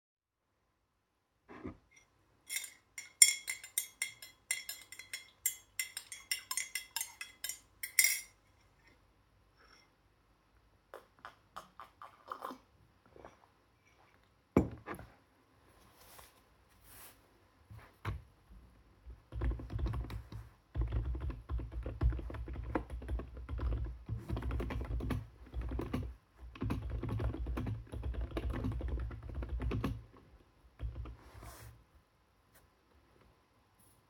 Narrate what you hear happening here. I stirred tea in a mug with a spoon, lifted the mug, took a sip, and placed it back on the desk. Then I was typing on the keyboard.